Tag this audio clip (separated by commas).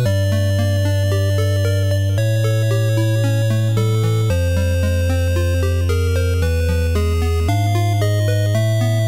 Music